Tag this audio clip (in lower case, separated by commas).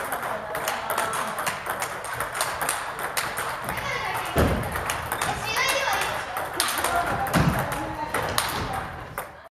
speech